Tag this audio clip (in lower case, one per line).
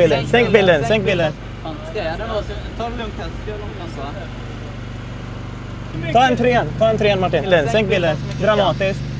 speech